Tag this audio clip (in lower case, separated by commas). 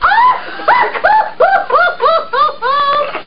human voice, laughter